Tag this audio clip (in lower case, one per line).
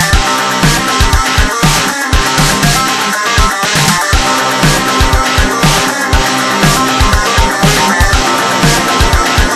music
electronic music
techno